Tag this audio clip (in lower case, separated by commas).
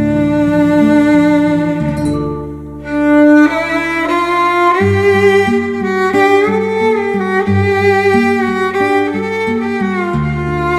fiddle, music, musical instrument